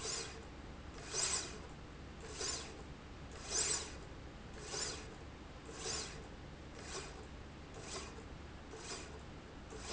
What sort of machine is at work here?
slide rail